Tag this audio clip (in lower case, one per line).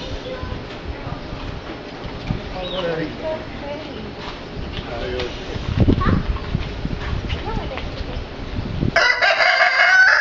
pheasant crowing